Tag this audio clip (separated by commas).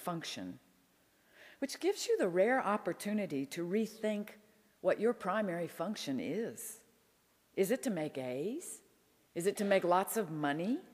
Speech